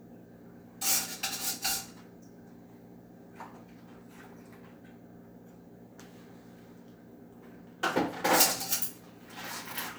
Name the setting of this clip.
kitchen